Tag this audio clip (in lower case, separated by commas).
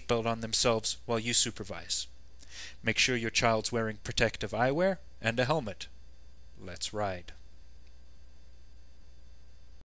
speech